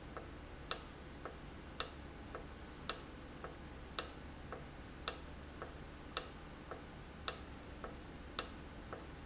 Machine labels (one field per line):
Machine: valve